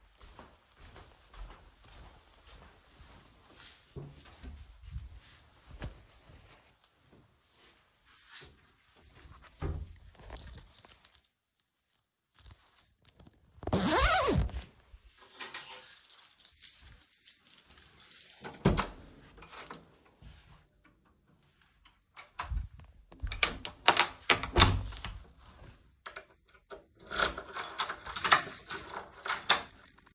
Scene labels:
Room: hallway; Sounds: footsteps, wardrobe or drawer (more than once), keys, door (more than once)

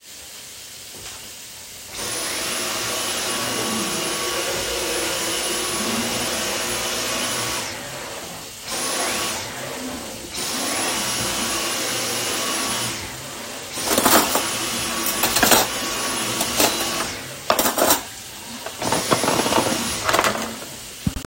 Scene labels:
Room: kitchen; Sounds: running water, vacuum cleaner, cutlery and dishes

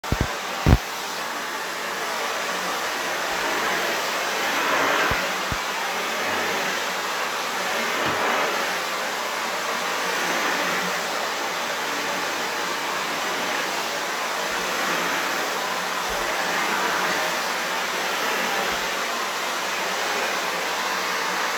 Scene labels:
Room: living room; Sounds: vacuum cleaner

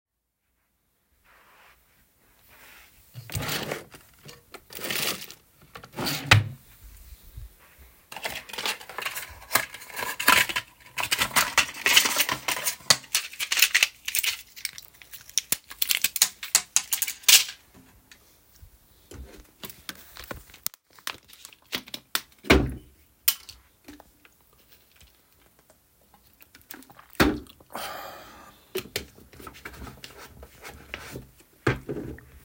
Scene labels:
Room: bedroom; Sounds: wardrobe or drawer (more than once)

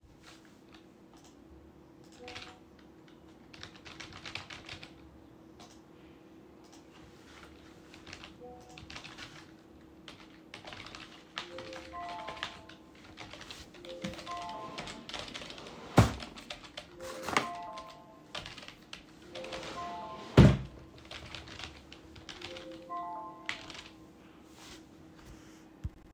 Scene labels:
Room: office; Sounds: keyboard typing, phone ringing, wardrobe or drawer (more than once)

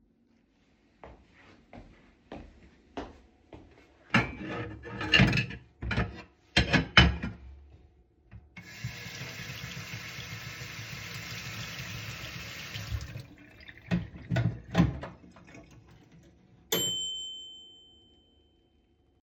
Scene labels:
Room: kitchen; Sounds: footsteps, cutlery and dishes, running water, microwave

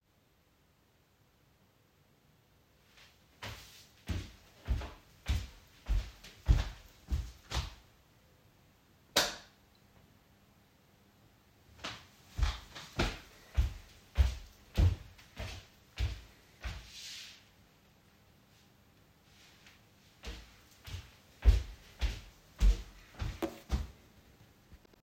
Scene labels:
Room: living room; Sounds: footsteps, light switch

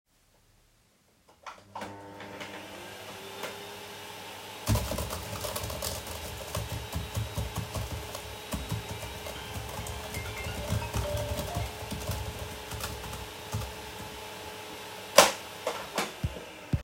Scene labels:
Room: office; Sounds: vacuum cleaner, keyboard typing, phone ringing

